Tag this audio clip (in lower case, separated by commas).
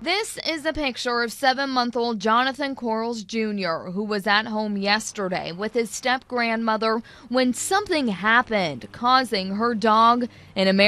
speech